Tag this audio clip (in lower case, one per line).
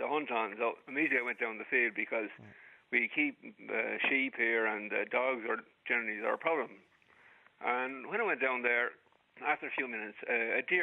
speech